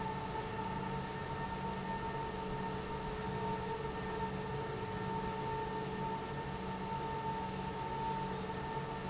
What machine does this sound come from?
pump